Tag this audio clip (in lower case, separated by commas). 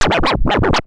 music, musical instrument, scratching (performance technique)